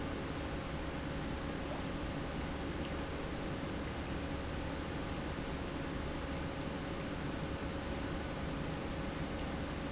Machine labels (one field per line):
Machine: pump